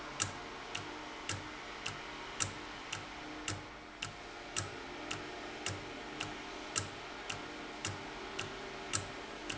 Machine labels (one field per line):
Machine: valve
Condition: normal